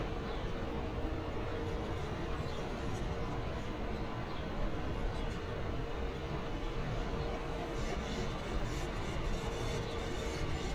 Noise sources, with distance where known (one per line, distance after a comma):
engine of unclear size